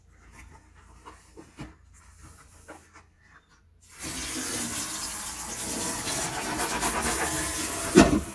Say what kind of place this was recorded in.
kitchen